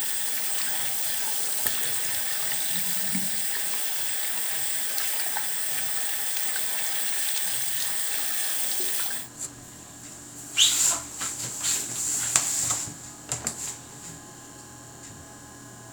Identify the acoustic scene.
restroom